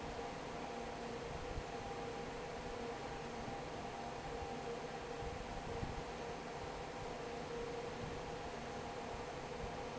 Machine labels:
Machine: fan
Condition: normal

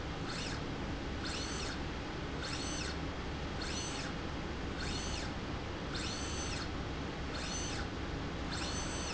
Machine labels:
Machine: slide rail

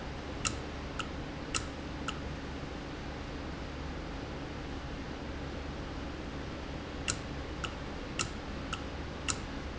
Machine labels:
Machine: valve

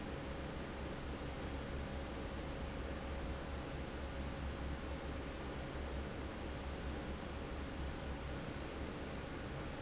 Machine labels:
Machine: fan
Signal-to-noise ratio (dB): 0 dB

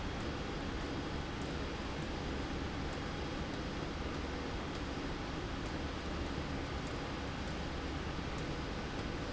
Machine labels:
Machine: slide rail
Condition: abnormal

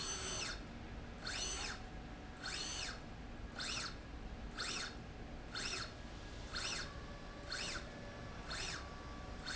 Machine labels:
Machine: slide rail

